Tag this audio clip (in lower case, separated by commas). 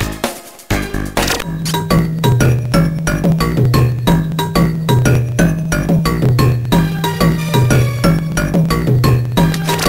music, knock